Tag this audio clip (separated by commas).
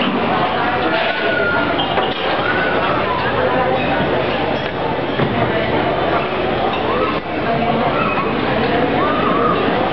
Speech